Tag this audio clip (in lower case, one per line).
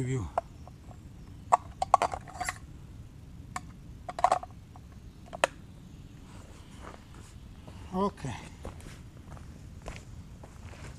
speech